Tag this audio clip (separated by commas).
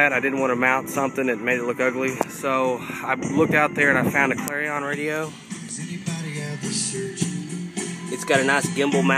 Speech, Music